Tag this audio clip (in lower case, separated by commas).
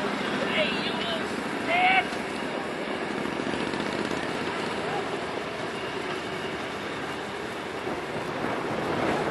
speech